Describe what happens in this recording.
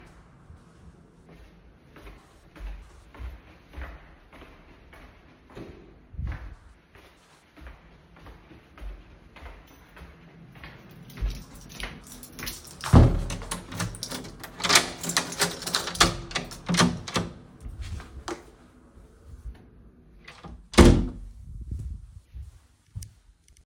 I approached my door. I opened it with a key and entered the room